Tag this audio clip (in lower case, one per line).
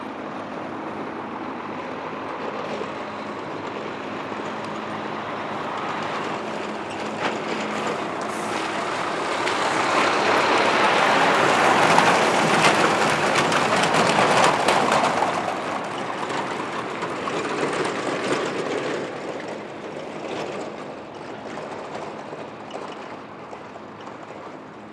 truck
vehicle
motor vehicle (road)